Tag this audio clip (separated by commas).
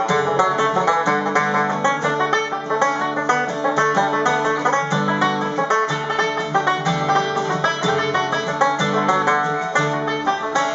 Music